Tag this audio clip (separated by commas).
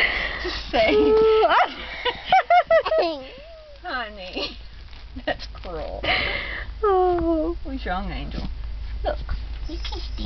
Speech